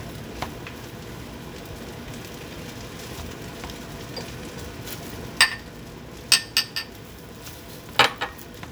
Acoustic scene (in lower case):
kitchen